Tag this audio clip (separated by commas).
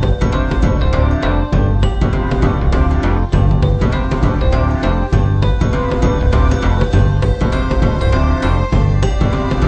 Music, Theme music